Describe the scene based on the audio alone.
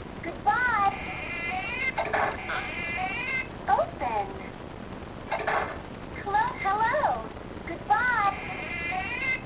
A young female is speaking, a squeak occurs, and then a clicking sound